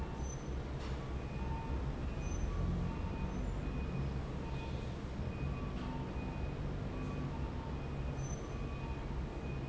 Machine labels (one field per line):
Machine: fan